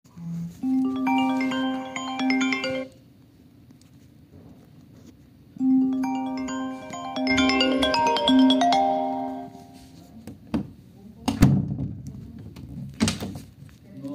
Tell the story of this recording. I put the phone on a table nearby in the room, the phone starts ringing, later when phone is not ringing I open and close the door